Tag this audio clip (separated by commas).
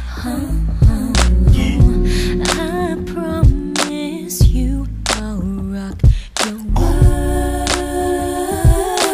Music